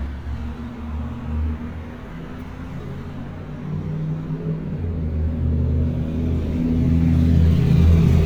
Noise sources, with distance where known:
engine of unclear size

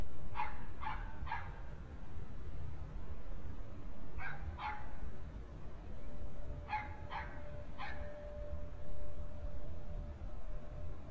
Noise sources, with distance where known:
dog barking or whining

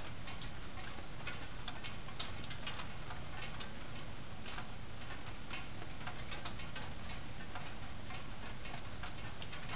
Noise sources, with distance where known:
background noise

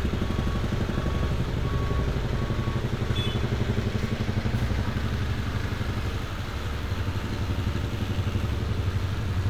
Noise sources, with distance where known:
large-sounding engine
car horn
reverse beeper

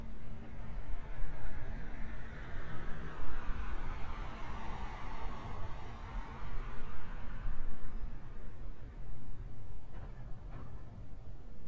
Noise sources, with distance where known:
medium-sounding engine, near

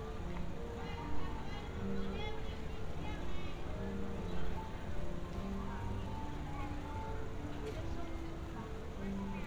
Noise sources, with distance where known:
music from an unclear source
unidentified human voice

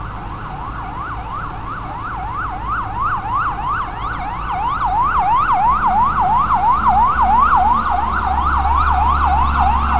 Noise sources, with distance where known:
siren, near

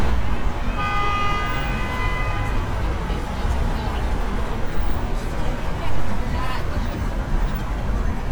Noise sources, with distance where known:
car horn, far
person or small group talking, near

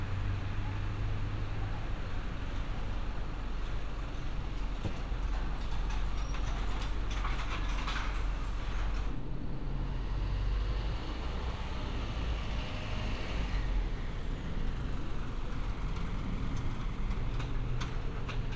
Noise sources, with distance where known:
engine of unclear size

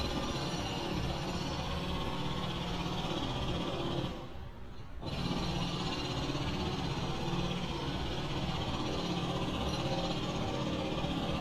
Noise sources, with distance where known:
jackhammer, far

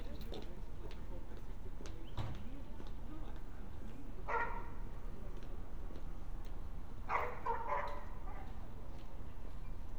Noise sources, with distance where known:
dog barking or whining, far

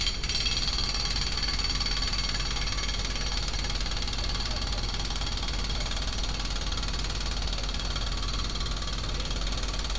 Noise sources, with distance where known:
unidentified impact machinery, near

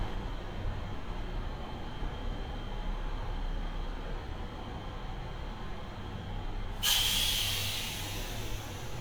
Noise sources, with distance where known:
large-sounding engine, near

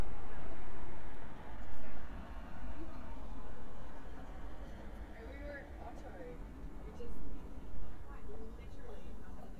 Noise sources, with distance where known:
person or small group talking

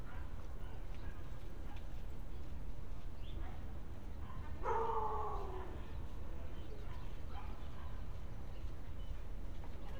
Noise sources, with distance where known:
unidentified human voice, far

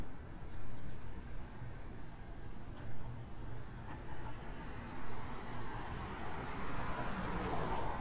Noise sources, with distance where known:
background noise

